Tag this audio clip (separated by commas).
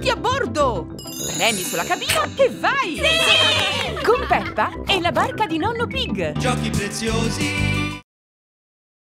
Speech, Music